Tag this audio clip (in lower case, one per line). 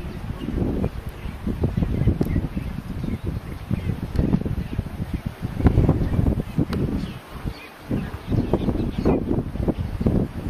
outside, rural or natural
animal